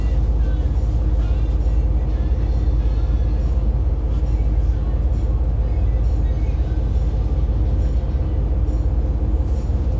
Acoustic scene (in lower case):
bus